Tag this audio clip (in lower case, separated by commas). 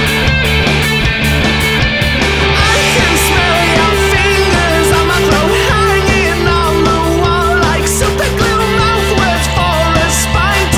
music, punk rock, heavy metal, rock and roll, dance music